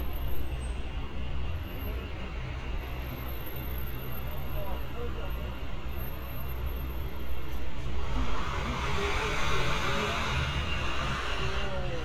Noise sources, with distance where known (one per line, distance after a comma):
large-sounding engine